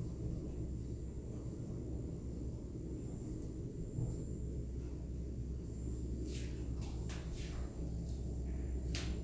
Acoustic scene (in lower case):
elevator